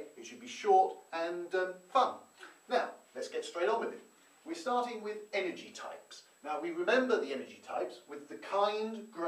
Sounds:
Speech

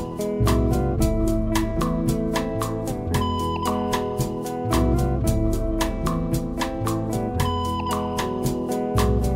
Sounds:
Classical music, Music

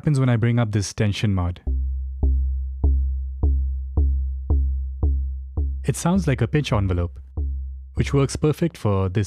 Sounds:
Speech

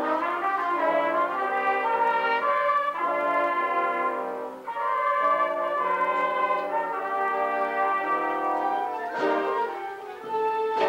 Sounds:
Music, inside a large room or hall

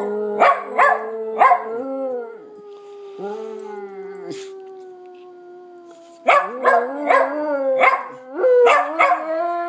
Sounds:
dog howling

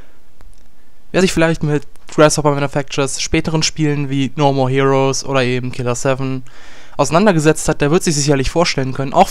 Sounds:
Speech

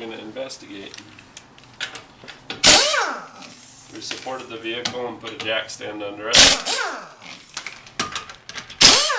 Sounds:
Speech

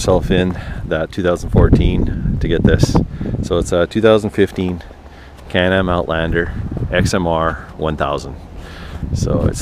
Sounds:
Speech

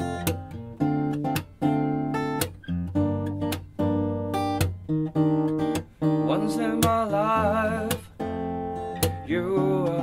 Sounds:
Music, Theme music, Soundtrack music

